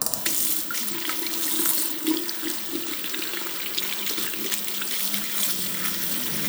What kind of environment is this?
restroom